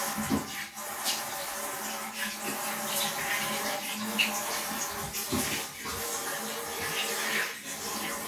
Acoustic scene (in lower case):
restroom